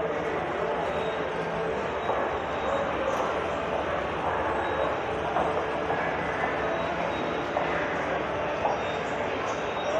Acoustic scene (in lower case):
subway station